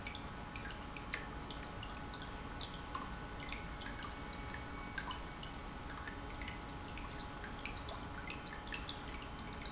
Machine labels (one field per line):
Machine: pump